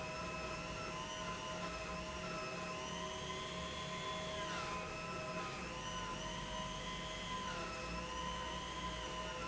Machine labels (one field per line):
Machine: pump